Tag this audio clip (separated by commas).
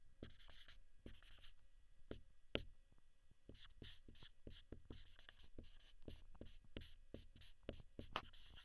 Writing, Domestic sounds